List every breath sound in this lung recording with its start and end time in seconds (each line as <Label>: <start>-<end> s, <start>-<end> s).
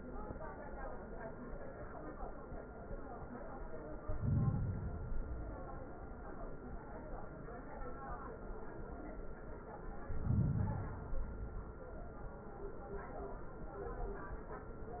Inhalation: 4.00-5.02 s, 10.01-11.11 s
Exhalation: 5.02-6.26 s, 11.12-12.22 s